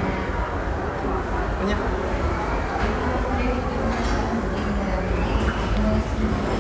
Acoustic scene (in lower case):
crowded indoor space